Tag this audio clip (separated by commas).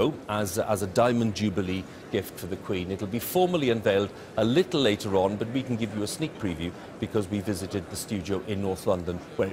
Speech